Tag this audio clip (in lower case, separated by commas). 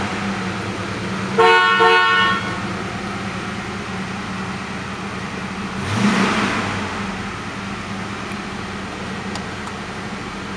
inside a large room or hall, vehicle, car